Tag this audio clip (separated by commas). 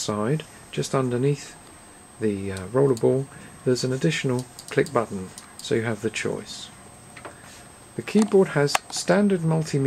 Speech